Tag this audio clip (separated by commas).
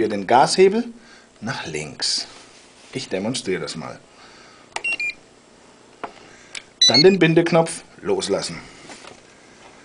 Speech